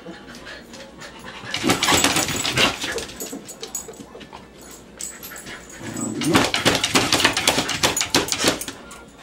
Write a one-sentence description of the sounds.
Dog pawing on a hard surface